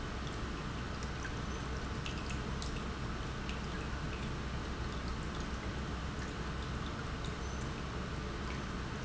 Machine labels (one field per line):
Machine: pump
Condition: normal